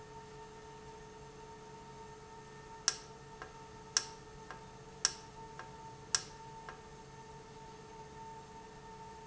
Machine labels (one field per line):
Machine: valve